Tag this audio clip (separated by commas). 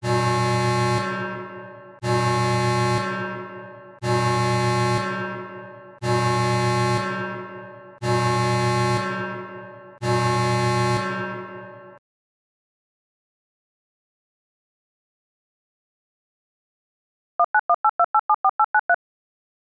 Alarm